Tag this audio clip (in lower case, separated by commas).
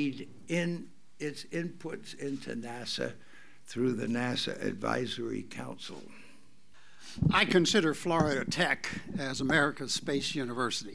speech